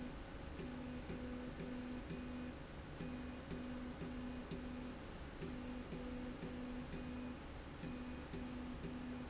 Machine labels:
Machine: slide rail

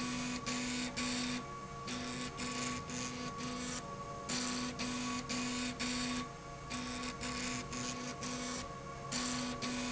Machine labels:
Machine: slide rail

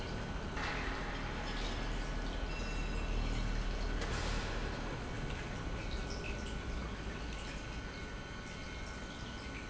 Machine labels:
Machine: pump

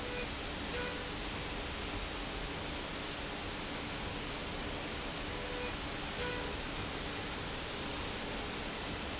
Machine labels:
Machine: slide rail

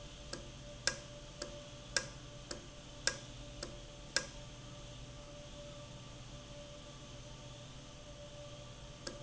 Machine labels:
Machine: valve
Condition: normal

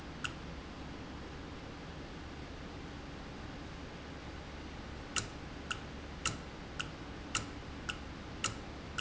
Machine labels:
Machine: valve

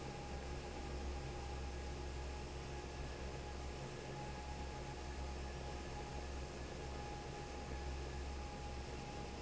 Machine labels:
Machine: fan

